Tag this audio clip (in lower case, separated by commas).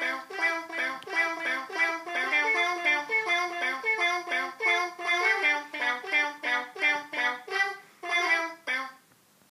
cat